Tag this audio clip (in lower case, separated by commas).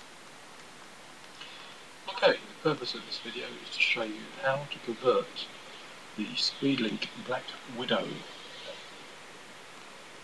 speech